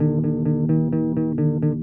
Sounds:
musical instrument, guitar, music, plucked string instrument, bass guitar

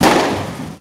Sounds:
fireworks, explosion

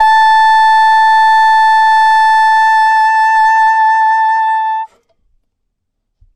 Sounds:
woodwind instrument, musical instrument, music

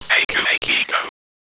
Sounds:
whispering, human voice

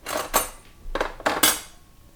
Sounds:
silverware, domestic sounds

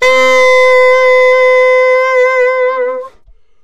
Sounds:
wind instrument, musical instrument, music

